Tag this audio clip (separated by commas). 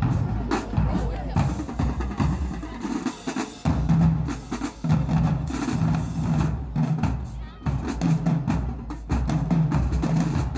people marching